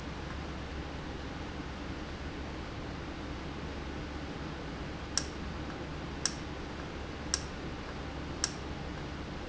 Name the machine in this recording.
valve